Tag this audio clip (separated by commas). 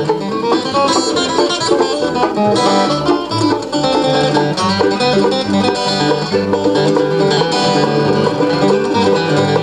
Musical instrument, Guitar, Bluegrass, Banjo, Music, Plucked string instrument, playing banjo